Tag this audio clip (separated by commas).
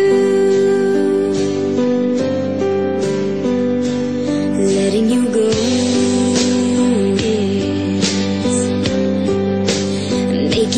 Music, Song